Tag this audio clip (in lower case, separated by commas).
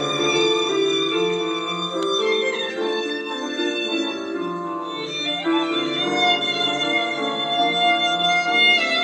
fiddle, musical instrument, music, playing violin